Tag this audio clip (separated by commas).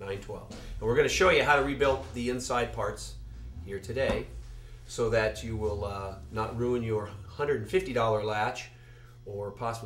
Speech